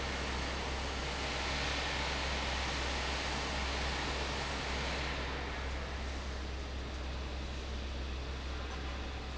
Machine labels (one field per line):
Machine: fan